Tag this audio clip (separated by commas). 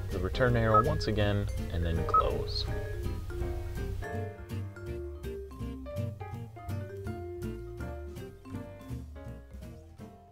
Speech, Music